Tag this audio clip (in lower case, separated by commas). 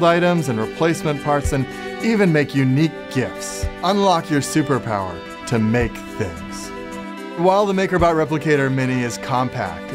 speech, music